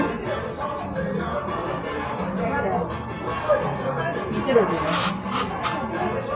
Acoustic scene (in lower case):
cafe